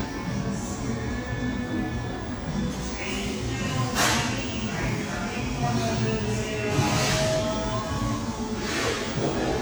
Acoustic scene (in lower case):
cafe